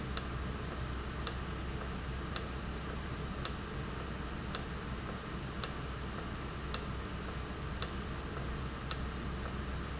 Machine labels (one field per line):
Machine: valve